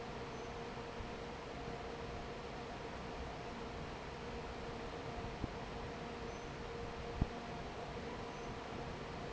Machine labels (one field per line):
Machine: fan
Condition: normal